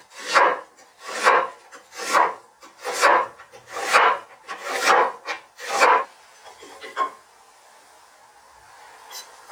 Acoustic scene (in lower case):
kitchen